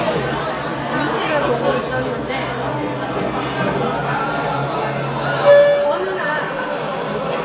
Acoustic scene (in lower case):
restaurant